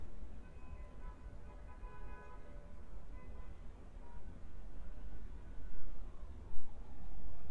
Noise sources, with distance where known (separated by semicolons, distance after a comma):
car horn, far